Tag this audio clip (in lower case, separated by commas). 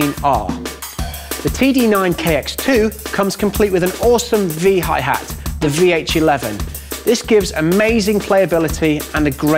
musical instrument, music, speech, drum kit, drum